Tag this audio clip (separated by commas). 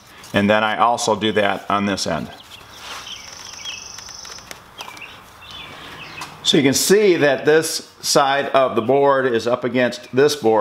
planing timber